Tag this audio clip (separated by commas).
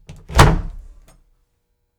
Door, Domestic sounds, Slam